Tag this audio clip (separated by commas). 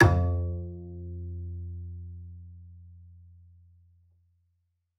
Music, Musical instrument, Bowed string instrument